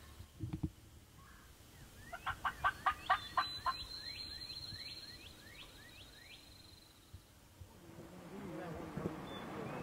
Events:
0.0s-9.8s: background noise
0.4s-0.6s: generic impact sounds
1.1s-1.5s: chirp
1.7s-2.3s: chirp
2.1s-2.3s: gobble
2.4s-2.5s: gobble
2.6s-7.3s: chirp
2.6s-2.7s: gobble
2.8s-2.9s: gobble
3.1s-3.1s: gobble
3.3s-3.4s: gobble
3.6s-3.7s: gobble
7.1s-7.2s: generic impact sounds
7.6s-7.6s: generic impact sounds
7.8s-9.8s: conversation
7.8s-9.8s: male speech
8.9s-9.1s: generic impact sounds
9.2s-9.8s: chirp

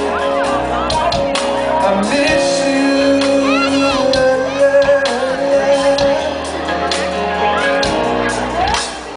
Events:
0.0s-1.3s: female singing
0.0s-9.1s: music
1.7s-6.3s: male singing
3.4s-4.0s: child speech
4.4s-4.6s: child speech
6.7s-8.4s: male singing
8.4s-8.8s: female singing

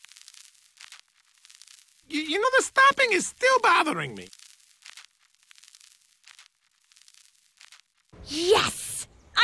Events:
0.0s-8.1s: noise
2.0s-9.4s: conversation
2.0s-4.3s: man speaking
8.1s-9.0s: female speech
8.1s-9.4s: background noise

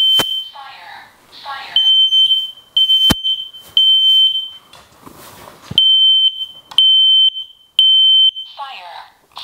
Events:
0.0s-0.6s: beep
0.0s-9.4s: background noise
0.1s-0.3s: generic impact sounds
0.4s-1.1s: speech synthesizer
1.2s-1.9s: speech synthesizer
1.7s-4.6s: beep
3.0s-3.2s: generic impact sounds
4.7s-5.8s: surface contact
5.7s-8.6s: beep
6.7s-6.8s: generic impact sounds
8.4s-9.1s: speech synthesizer
9.3s-9.4s: speech synthesizer

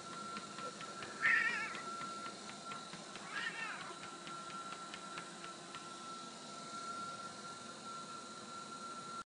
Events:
0.0s-9.2s: mechanisms
0.0s-5.8s: run
3.3s-4.0s: caterwaul

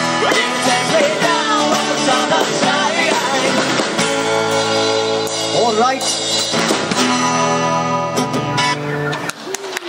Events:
0.0s-3.9s: male singing
0.0s-9.8s: music
0.1s-0.5s: sound effect
5.3s-6.1s: male speech
9.0s-9.8s: clapping

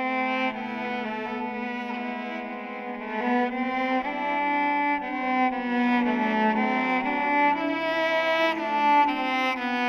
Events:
0.0s-9.8s: music

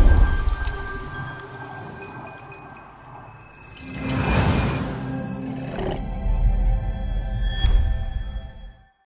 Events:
0.0s-4.0s: music
0.0s-9.0s: sound effect

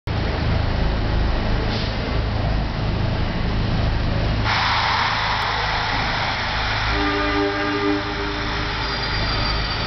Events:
0.0s-9.8s: metro
6.9s-8.5s: train horn
8.7s-9.8s: train wheels squealing

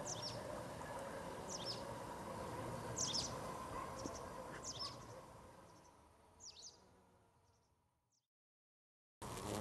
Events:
0.0s-0.3s: tweet
0.0s-5.2s: animal
0.0s-7.5s: wind
1.4s-1.9s: tweet
2.9s-3.3s: tweet
3.6s-3.9s: bark
3.9s-4.2s: tweet
4.0s-4.0s: generic impact sounds
4.5s-4.6s: generic impact sounds
4.6s-5.2s: tweet
4.8s-5.0s: bark
5.6s-5.9s: tweet
6.4s-6.8s: tweet
7.4s-7.7s: tweet
8.1s-8.2s: tweet
9.2s-9.6s: bee or wasp

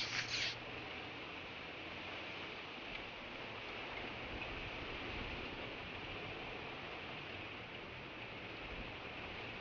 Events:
0.0s-0.6s: animal
0.0s-9.6s: wind
2.9s-3.0s: tick
4.4s-4.5s: tick

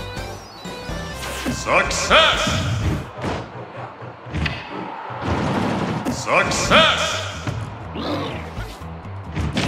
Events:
0.0s-2.4s: music
0.0s-9.6s: video game sound
1.2s-1.4s: sound effect
1.4s-1.5s: generic impact sounds
1.6s-2.6s: man speaking
1.9s-2.1s: sound effect
2.4s-2.6s: sound effect
2.6s-3.0s: reverberation
2.8s-3.0s: sound effect
3.2s-3.4s: sound effect
3.5s-4.1s: sound effect
4.3s-4.7s: generic impact sounds
4.6s-5.2s: sound effect
5.2s-6.0s: machine gun
6.0s-6.1s: generic impact sounds
6.1s-6.2s: sound effect
6.2s-7.0s: man speaking
6.5s-6.7s: sound effect
6.6s-9.6s: music
7.0s-7.2s: sound effect
7.1s-7.5s: reverberation
7.4s-7.5s: generic impact sounds
7.9s-8.4s: sound effect
8.6s-8.8s: sound effect
9.3s-9.6s: generic impact sounds

